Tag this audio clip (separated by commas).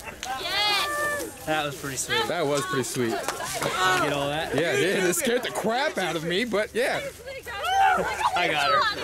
Speech